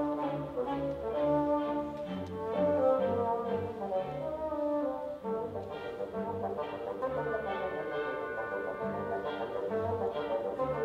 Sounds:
playing bassoon

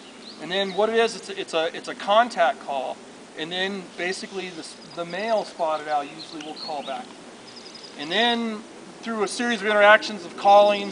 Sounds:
Animal, Speech, Bird

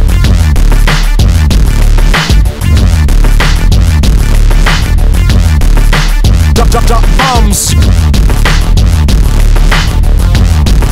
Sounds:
Music

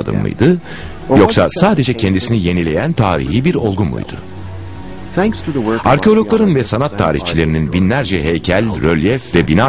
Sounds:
Music, Speech

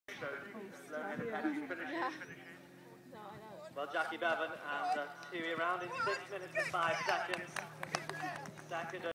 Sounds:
Speech, Clip-clop

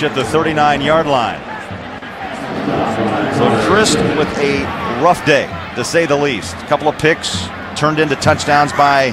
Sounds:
Speech

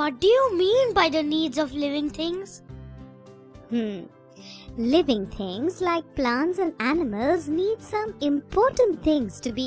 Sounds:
Music for children, Child speech

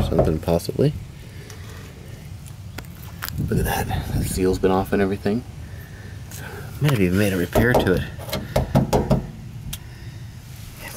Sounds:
Speech

